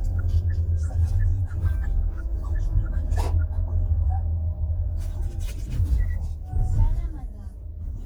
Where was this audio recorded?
in a car